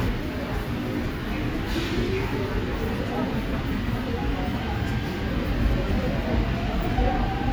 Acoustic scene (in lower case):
subway station